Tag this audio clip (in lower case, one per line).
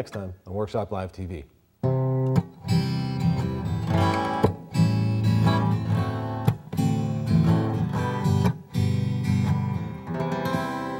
acoustic guitar